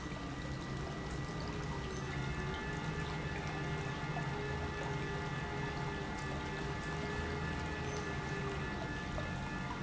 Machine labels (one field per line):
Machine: pump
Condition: normal